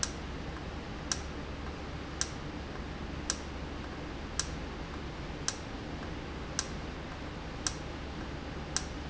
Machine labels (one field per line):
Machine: valve